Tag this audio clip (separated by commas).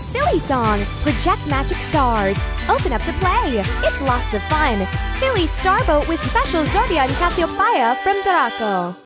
Speech, Music